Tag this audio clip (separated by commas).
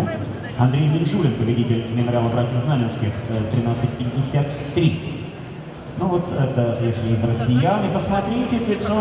outside, urban or man-made, Music, Speech